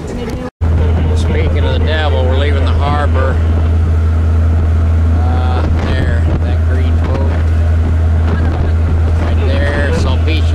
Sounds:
Vehicle, Speech

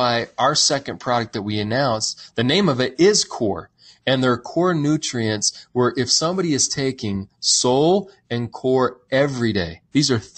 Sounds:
Speech

